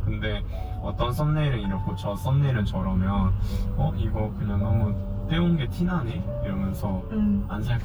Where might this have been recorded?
in a car